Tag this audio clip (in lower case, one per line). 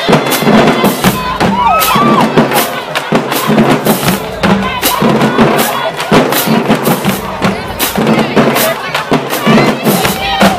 people marching